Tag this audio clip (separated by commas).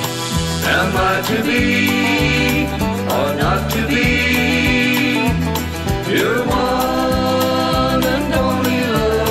Country, Music, Rock music